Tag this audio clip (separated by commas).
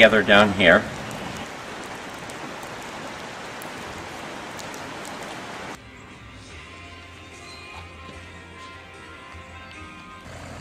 Speech, Music